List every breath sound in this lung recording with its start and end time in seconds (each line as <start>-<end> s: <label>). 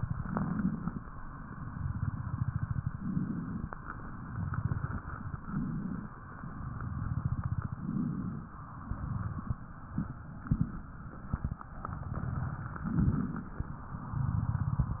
0.00-1.00 s: inhalation
1.13-2.95 s: exhalation
1.15-2.91 s: crackles
2.96-3.76 s: inhalation
3.76-5.37 s: exhalation
3.76-5.37 s: crackles
5.41-6.15 s: inhalation
6.19-7.80 s: exhalation
6.19-7.80 s: crackles
7.86-8.60 s: inhalation
8.77-12.71 s: exhalation
8.77-12.71 s: crackles
12.77-13.65 s: inhalation
13.83-15.00 s: exhalation
13.83-15.00 s: crackles